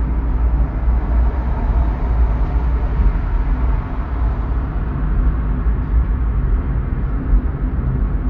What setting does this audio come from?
car